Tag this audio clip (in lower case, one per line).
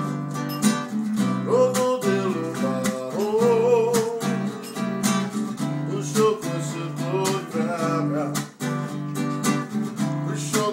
male singing
music